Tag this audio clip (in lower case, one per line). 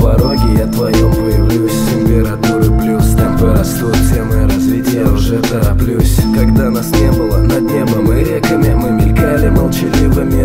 music